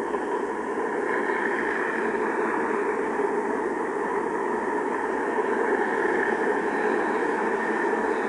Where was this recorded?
on a street